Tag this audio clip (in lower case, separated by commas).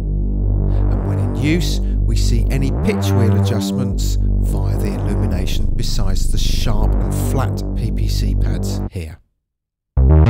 music, musical instrument, speech, synthesizer